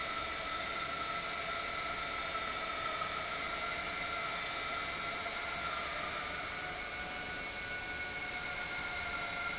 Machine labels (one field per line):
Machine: pump